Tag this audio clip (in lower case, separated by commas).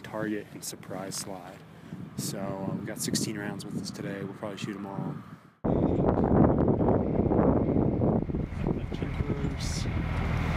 speech, outside, rural or natural